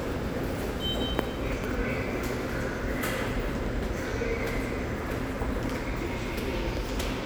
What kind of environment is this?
subway station